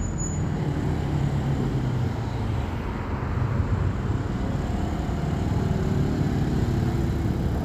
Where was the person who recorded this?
on a street